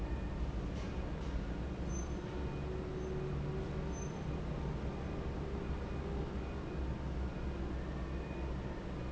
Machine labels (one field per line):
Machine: fan